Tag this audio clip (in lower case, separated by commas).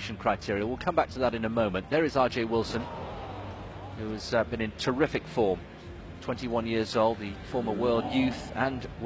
speech, music, outside, urban or man-made